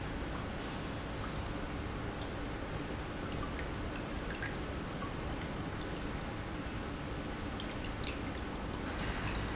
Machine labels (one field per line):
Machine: pump